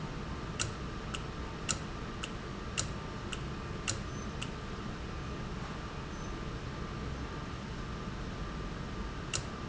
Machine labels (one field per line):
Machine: valve